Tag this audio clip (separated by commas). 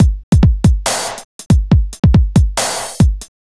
Music, Drum kit, Musical instrument, Percussion